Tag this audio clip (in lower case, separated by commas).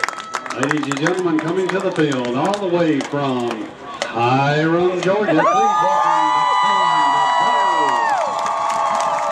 speech, cheering